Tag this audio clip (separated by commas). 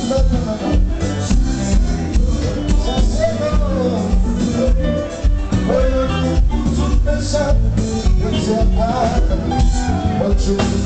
Music